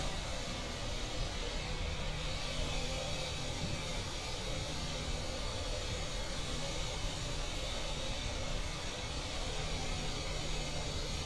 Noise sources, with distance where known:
unidentified impact machinery

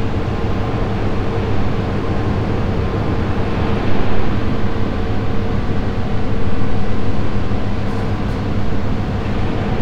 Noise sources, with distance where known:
large-sounding engine, near

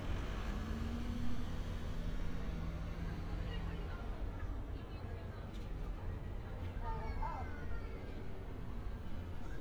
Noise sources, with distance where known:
person or small group talking, far

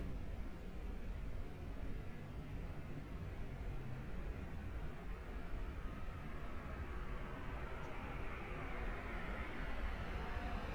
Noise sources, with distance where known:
background noise

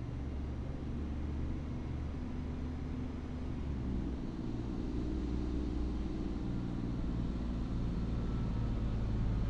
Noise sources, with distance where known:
engine of unclear size, far

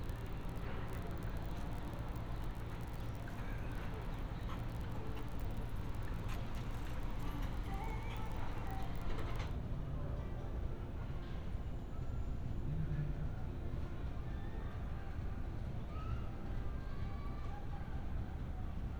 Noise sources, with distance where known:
music from an unclear source

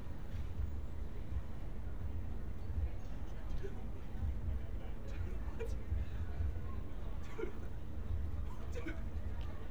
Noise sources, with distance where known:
person or small group talking

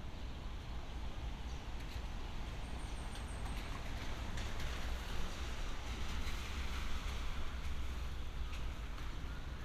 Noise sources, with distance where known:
medium-sounding engine

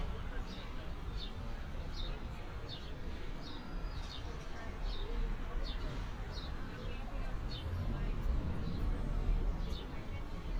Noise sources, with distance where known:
person or small group talking, far

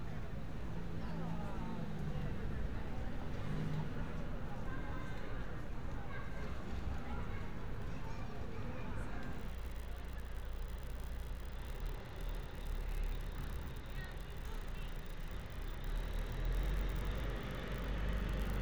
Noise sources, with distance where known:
medium-sounding engine; person or small group talking

